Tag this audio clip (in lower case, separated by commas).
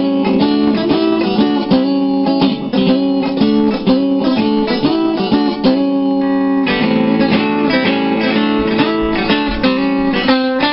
music, musical instrument, electric guitar, guitar, plucked string instrument, strum